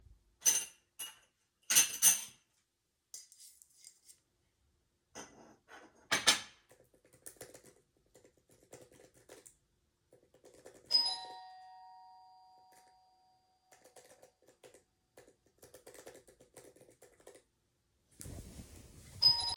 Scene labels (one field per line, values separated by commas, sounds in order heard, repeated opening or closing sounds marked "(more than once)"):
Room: bedroom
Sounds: cutlery and dishes, keyboard typing, bell ringing